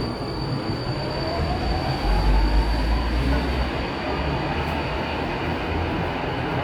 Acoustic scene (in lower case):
subway station